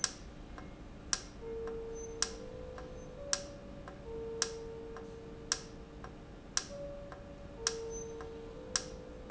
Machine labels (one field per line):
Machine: valve